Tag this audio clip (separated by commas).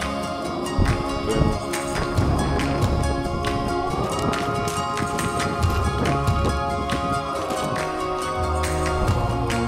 Music